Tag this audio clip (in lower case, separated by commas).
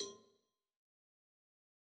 cowbell, bell